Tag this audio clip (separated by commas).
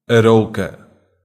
Human voice